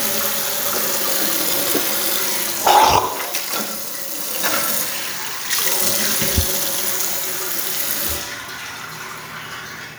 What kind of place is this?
restroom